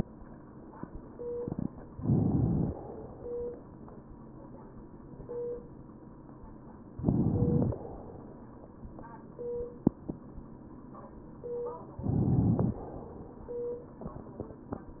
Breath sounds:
Inhalation: 1.96-2.72 s, 6.99-7.74 s, 12.02-12.78 s

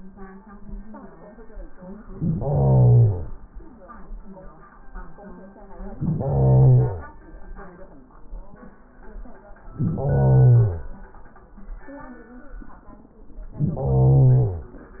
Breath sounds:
Inhalation: 2.06-3.42 s, 5.93-7.21 s, 9.65-10.94 s, 13.45-14.77 s

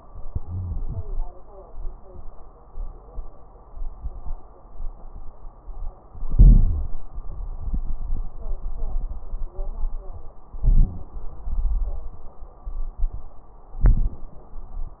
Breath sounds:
Inhalation: 0.24-1.16 s, 6.18-6.97 s, 10.59-11.38 s, 13.76-14.55 s
Exhalation: 11.47-12.26 s
Crackles: 0.24-1.16 s, 6.18-6.97 s, 10.59-11.38 s, 11.47-12.26 s, 13.76-14.55 s

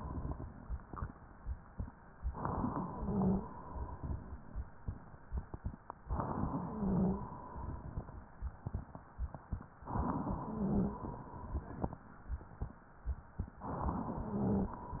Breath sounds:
Inhalation: 2.16-3.45 s, 6.05-7.35 s, 9.81-11.10 s, 13.54-14.84 s
Wheeze: 2.88-3.41 s, 6.66-7.22 s, 10.48-11.04 s, 14.25-14.82 s

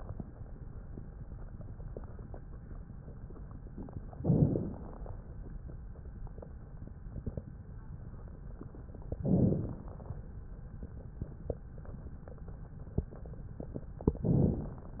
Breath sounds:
Inhalation: 4.18-5.26 s, 9.23-10.31 s
Crackles: 4.18-5.26 s, 9.23-10.31 s

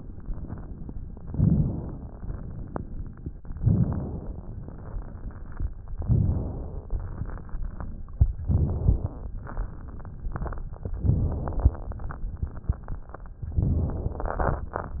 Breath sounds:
Inhalation: 1.27-2.13 s, 3.50-4.49 s, 5.97-6.96 s, 8.44-9.31 s, 10.94-11.75 s, 13.43-14.18 s
Exhalation: 2.16-3.38 s, 4.59-5.77 s, 6.93-8.27 s, 7.00-8.31 s, 11.79-13.35 s
Crackles: 1.27-2.13 s, 2.16-3.40 s, 3.50-4.49 s, 5.97-6.96 s, 6.93-8.27 s, 7.00-8.31 s, 8.44-9.31 s, 10.94-11.75 s, 11.79-13.35 s, 13.43-14.18 s

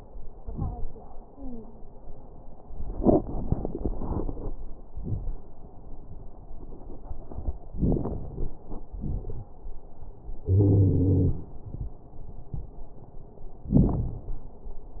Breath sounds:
Inhalation: 7.75-8.51 s
Exhalation: 8.93-9.50 s
Wheeze: 10.49-11.41 s
Crackles: 7.75-8.51 s, 8.93-9.50 s

